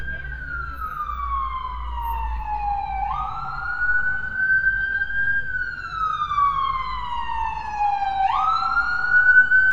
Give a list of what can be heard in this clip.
siren